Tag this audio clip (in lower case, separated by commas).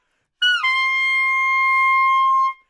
woodwind instrument, musical instrument, music